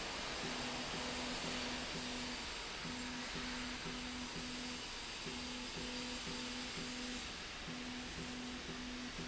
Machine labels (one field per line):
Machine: slide rail